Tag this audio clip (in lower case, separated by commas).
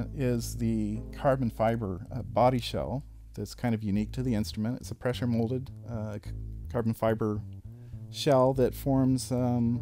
music, speech, musical instrument, guitar